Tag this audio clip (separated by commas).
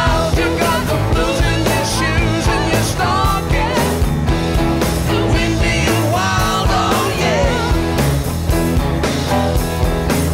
playing gong